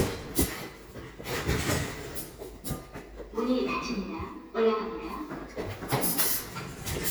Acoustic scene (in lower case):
elevator